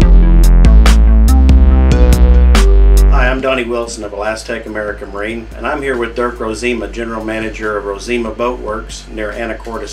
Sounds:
Music, Speech

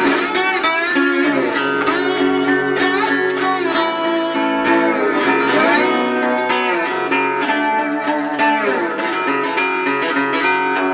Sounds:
slide guitar

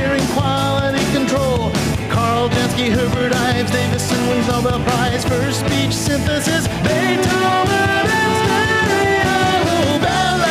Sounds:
Jingle bell, Music

